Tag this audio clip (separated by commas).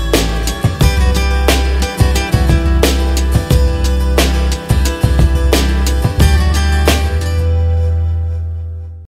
Music